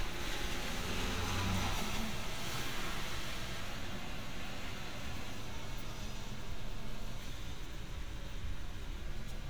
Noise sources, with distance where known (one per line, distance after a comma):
engine of unclear size, far